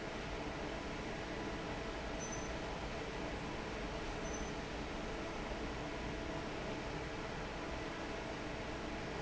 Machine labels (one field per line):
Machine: fan